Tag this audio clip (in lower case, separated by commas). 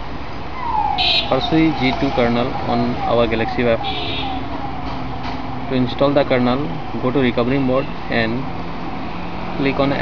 speech, outside, urban or man-made